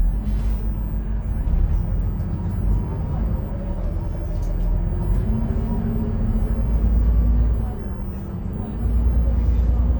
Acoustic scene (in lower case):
bus